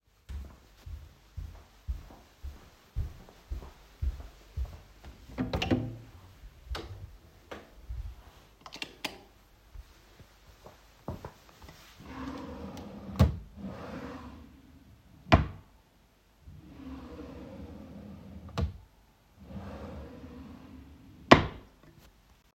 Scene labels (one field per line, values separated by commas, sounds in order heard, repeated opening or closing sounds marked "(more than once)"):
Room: hallway, bedroom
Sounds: footsteps, door, light switch, wardrobe or drawer (more than once)